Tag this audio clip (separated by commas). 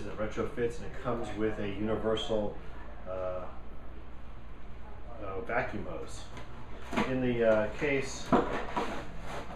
Speech